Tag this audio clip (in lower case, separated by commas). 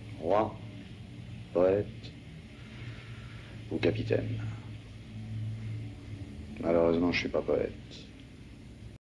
speech